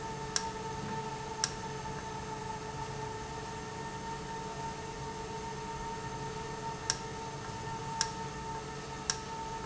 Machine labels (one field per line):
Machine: valve